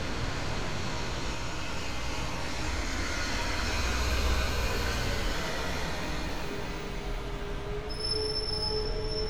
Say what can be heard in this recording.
large-sounding engine